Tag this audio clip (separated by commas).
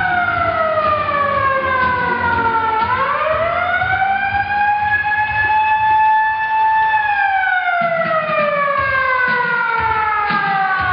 Siren, Music